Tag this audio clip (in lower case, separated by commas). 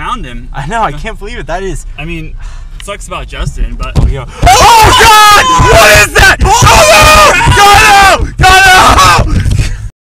speech